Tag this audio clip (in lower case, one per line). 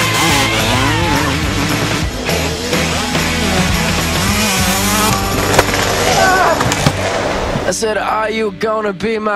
vehicle
music
motorcycle
speech